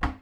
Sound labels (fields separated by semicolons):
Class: cupboard; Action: closing; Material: wooden